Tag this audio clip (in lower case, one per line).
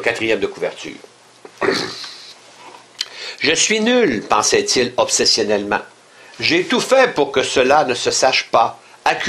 speech